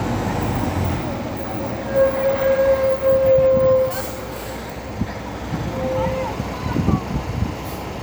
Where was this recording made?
on a street